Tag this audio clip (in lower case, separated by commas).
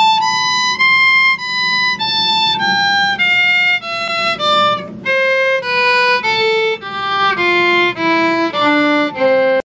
music, musical instrument, fiddle